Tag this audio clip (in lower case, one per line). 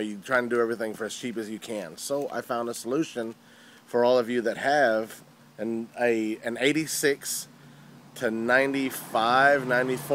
vehicle
car
speech